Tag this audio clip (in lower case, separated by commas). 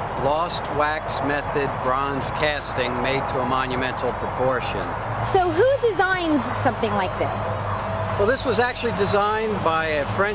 speech, music